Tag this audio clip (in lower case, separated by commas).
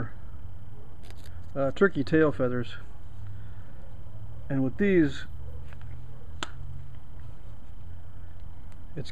speech